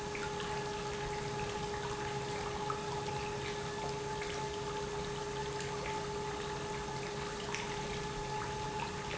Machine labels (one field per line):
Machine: pump